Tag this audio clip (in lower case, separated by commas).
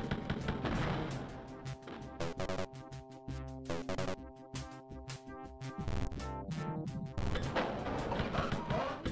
music